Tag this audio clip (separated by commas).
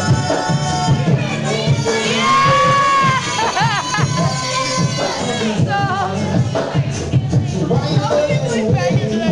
Music, Musical instrument, Speech